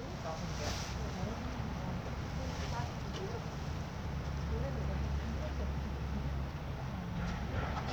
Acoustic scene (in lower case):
residential area